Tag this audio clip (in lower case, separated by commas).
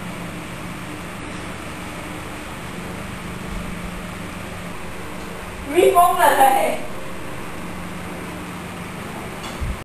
speech